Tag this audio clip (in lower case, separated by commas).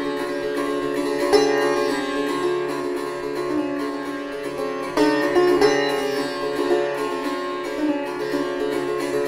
pizzicato